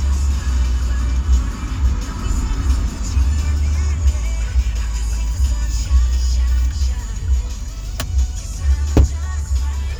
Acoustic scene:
car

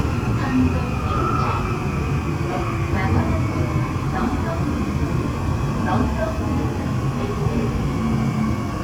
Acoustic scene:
subway train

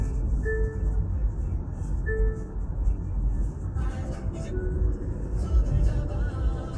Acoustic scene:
car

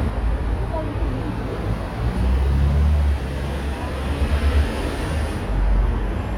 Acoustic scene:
residential area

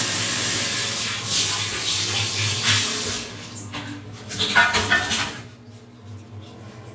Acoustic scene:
restroom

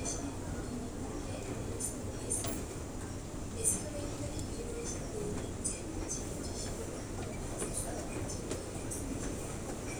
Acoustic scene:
crowded indoor space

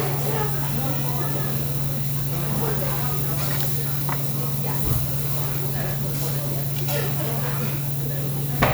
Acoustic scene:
restaurant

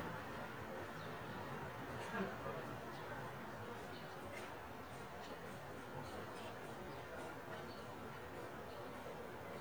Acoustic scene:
residential area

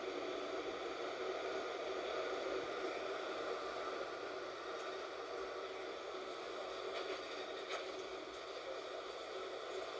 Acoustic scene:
bus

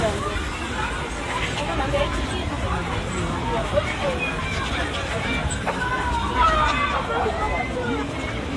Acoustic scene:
park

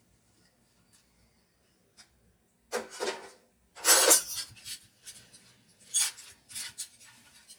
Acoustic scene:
kitchen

